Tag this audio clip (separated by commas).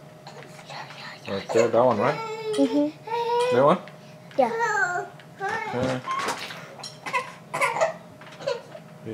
Babbling